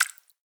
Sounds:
drip, liquid

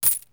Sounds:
home sounds, coin (dropping)

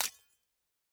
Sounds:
glass, shatter

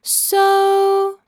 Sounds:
female singing, human voice, singing

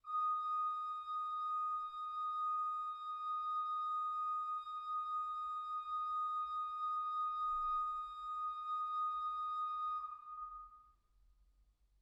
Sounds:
musical instrument, organ, keyboard (musical), music

